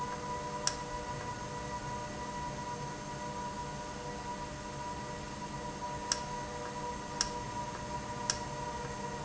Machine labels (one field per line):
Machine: valve